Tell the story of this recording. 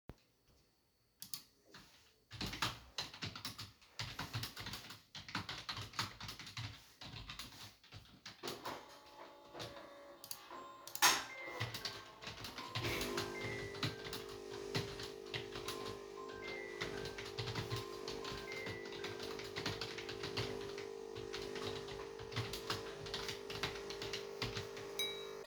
I type on my keyboard when the coffee machine turns on. Following that, my phone rings. At the end of the scene, I accidentally hit the mug nearby.